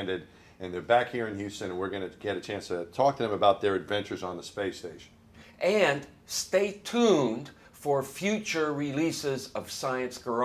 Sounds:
speech

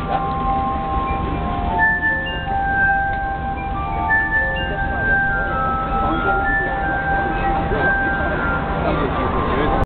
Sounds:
chink, speech, music

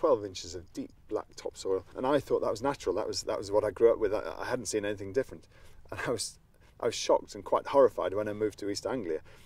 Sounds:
speech

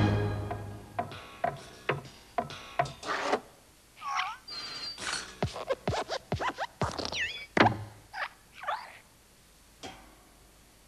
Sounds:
music

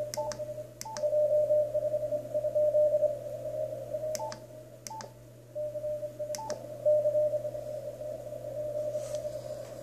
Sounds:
dtmf

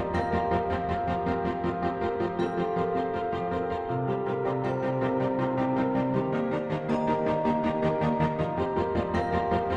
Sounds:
music

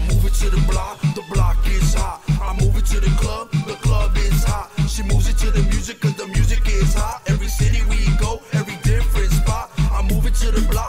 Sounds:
rhythm and blues, music, pop music

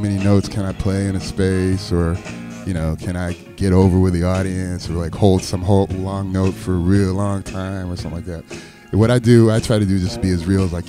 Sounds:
music, speech

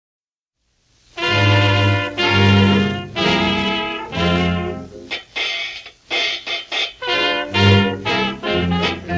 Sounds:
jazz, music, orchestra

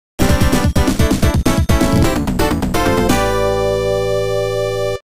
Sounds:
music, theme music

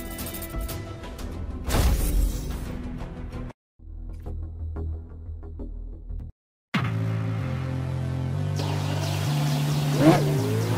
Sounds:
music

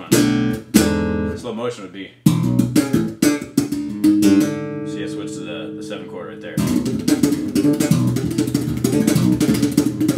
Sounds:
guitar, bass guitar, music, plucked string instrument, speech, musical instrument

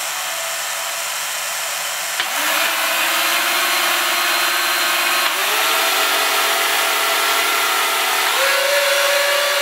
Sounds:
inside a small room

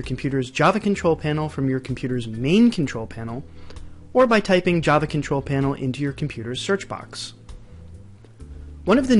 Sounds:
speech

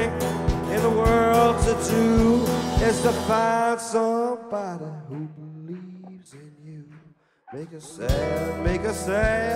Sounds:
music

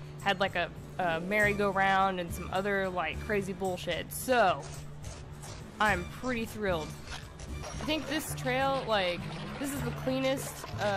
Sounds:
clip-clop, music, speech

